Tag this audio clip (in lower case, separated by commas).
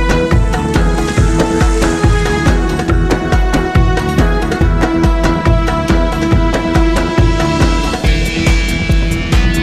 music